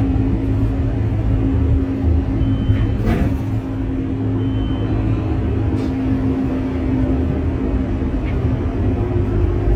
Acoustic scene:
bus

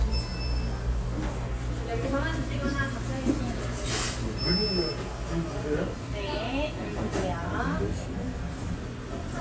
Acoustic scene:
restaurant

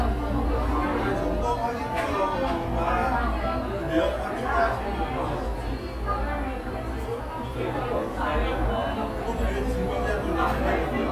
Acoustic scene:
cafe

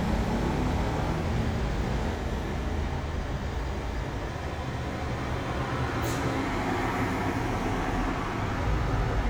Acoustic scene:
street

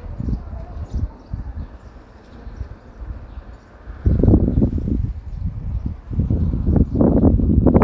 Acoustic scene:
residential area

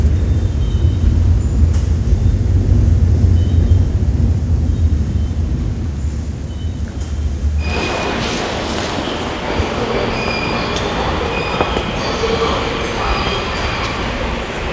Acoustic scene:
subway station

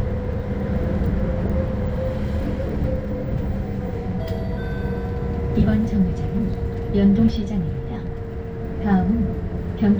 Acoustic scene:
bus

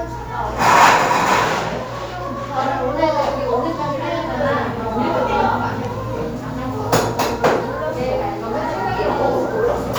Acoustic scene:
cafe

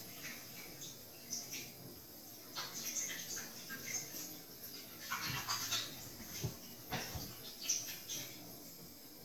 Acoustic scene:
restroom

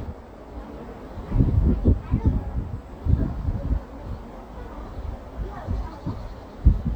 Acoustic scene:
residential area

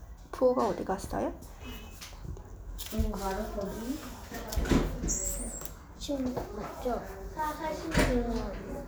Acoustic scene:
crowded indoor space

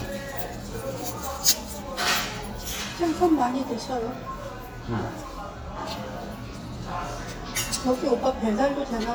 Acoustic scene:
restaurant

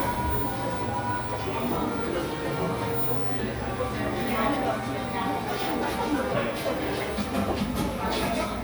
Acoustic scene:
cafe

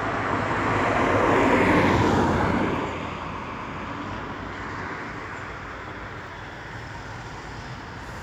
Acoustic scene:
street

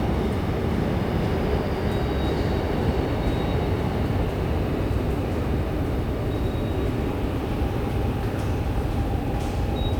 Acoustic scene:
subway station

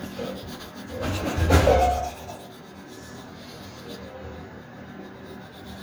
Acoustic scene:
restroom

